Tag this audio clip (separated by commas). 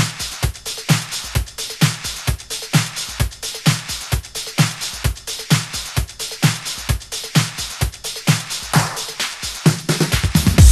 Music